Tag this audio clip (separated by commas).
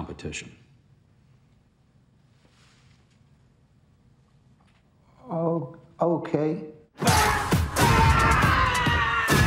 Speech, Music